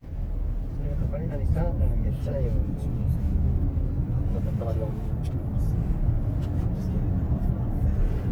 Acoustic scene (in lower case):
car